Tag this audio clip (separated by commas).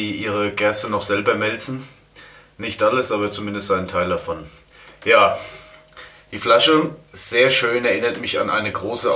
Speech